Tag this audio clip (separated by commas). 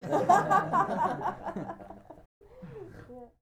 Human voice, Laughter, chortle